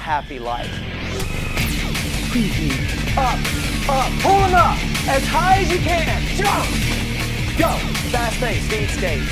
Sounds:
music
speech

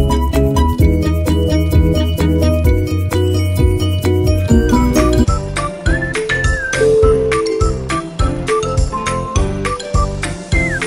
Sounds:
music

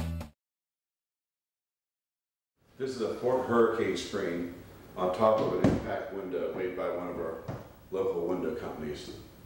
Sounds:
music
speech

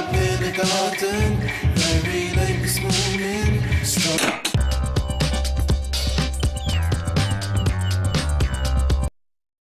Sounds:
background music
music

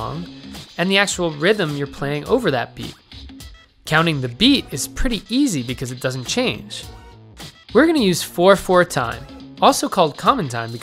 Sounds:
speech
music

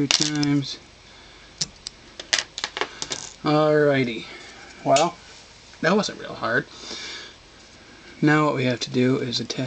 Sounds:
speech

